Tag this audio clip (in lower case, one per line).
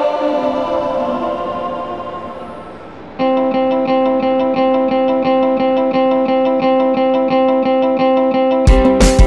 music